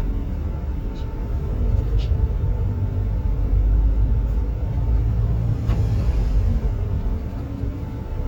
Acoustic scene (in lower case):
bus